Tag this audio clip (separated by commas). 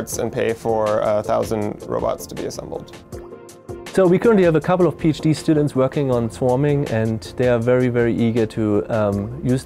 Speech, Music